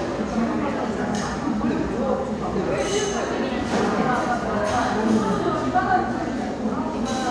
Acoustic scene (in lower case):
crowded indoor space